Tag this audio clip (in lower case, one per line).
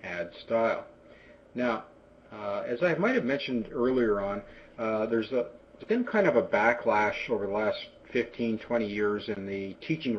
speech